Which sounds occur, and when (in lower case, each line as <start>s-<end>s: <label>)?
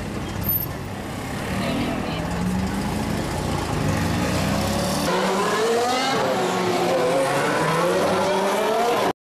0.0s-5.1s: roadway noise
0.2s-0.6s: generic impact sounds
1.4s-2.1s: accelerating
1.5s-2.2s: woman speaking
3.7s-4.8s: accelerating
5.1s-9.1s: auto racing
5.1s-6.1s: accelerating
7.2s-9.1s: accelerating